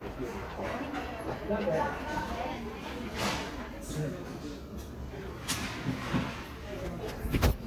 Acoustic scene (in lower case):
crowded indoor space